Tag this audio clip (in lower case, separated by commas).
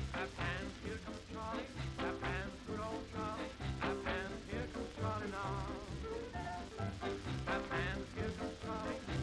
music